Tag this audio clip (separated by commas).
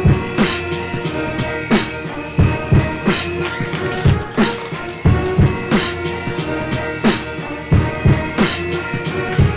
Music